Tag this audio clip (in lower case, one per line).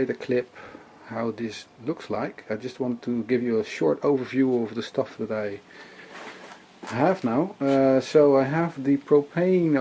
speech